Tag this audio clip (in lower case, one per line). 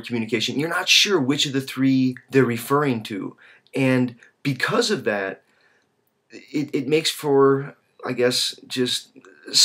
speech
narration
male speech